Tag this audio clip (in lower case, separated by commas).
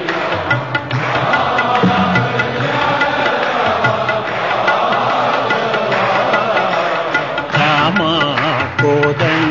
male singing, choir, music